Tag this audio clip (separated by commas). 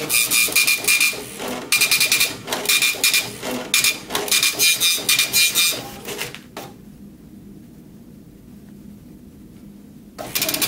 Printer